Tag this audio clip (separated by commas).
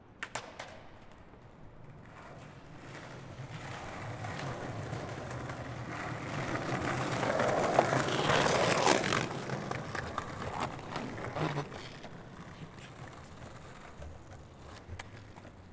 Skateboard, Vehicle